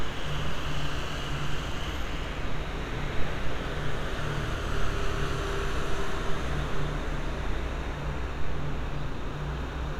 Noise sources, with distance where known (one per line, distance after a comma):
engine of unclear size, near